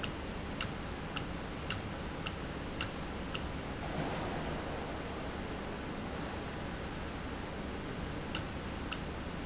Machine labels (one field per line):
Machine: valve